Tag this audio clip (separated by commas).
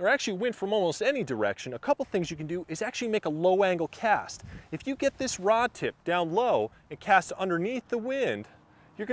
Speech